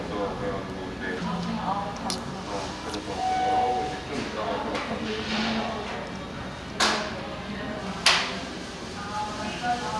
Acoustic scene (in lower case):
crowded indoor space